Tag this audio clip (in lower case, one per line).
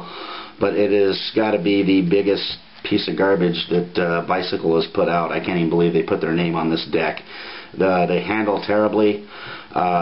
speech